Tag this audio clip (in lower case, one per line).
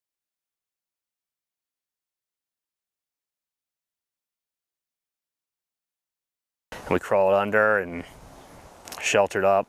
speech